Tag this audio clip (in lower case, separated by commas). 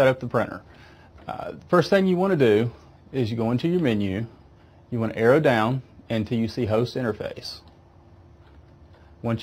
speech